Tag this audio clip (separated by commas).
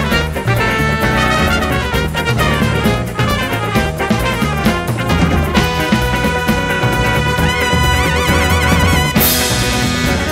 Music